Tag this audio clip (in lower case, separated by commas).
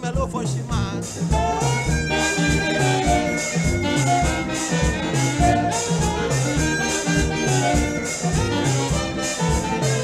music, swing music